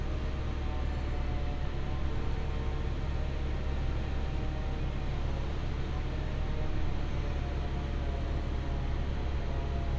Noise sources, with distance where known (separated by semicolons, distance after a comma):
unidentified powered saw, far